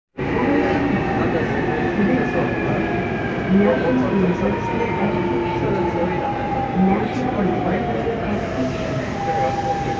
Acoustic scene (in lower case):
subway train